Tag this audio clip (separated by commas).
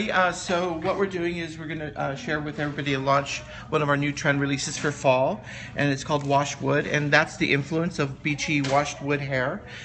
Speech